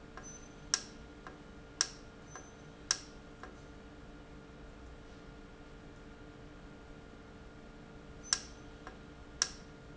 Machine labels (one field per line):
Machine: valve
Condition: normal